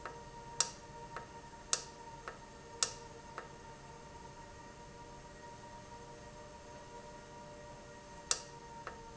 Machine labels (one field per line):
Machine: valve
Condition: normal